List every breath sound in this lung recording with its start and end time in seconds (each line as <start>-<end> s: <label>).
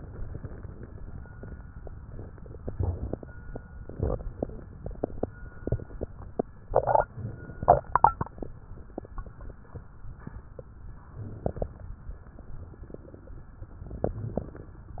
2.56-3.30 s: inhalation
3.82-4.56 s: exhalation
3.82-4.56 s: crackles
7.11-7.85 s: inhalation
11.13-11.87 s: inhalation
13.98-14.72 s: inhalation